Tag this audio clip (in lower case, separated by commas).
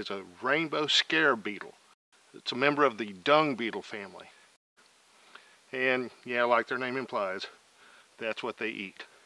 speech